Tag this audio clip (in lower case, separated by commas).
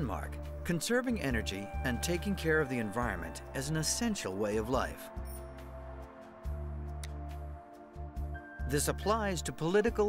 music, speech